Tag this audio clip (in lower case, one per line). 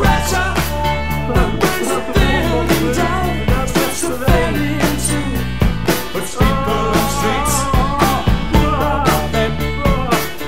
music
speech
ska